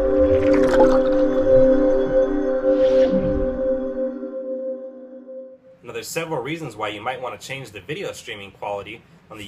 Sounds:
Music, Speech

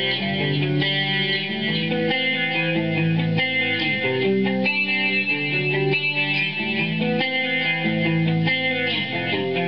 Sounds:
Guitar, Plucked string instrument, Musical instrument, Strum, Music, Electric guitar

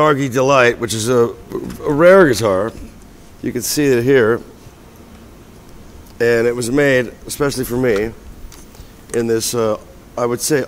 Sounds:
Speech

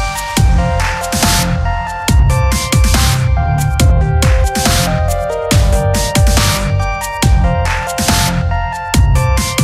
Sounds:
Music, Dubstep, Electronic music

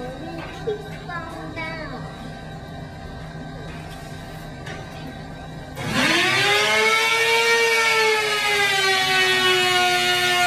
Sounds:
Speech

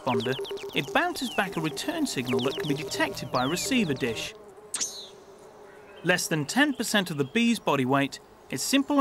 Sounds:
Speech

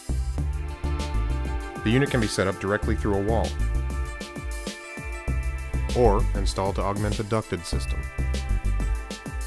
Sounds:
Speech, Music

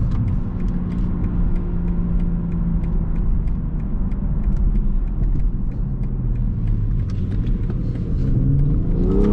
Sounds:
car passing by

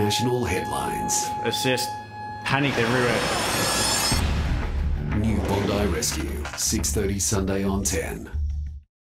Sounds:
Speech, Music

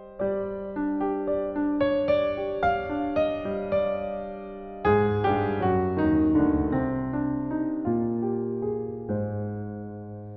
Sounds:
Soul music, New-age music, Music

